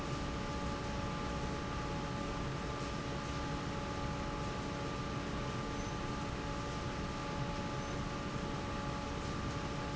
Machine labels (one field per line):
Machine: fan